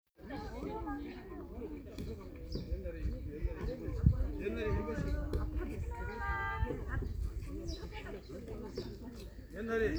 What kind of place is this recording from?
park